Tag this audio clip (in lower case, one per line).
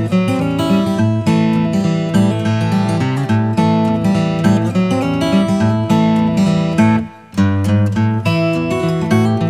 music